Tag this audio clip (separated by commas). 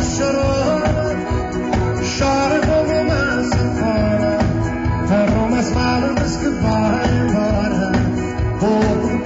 Singing, Music